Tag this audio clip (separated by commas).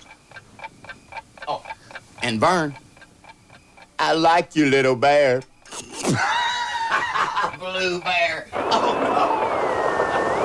Speech